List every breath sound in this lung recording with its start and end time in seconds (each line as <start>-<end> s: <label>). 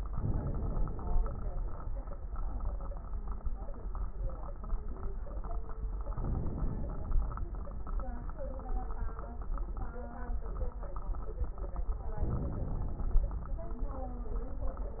0.06-1.21 s: inhalation
0.06-1.21 s: crackles
1.17-2.01 s: exhalation
1.24-2.01 s: crackles
6.11-7.13 s: inhalation
6.11-7.13 s: crackles
12.23-13.26 s: inhalation
12.23-13.26 s: crackles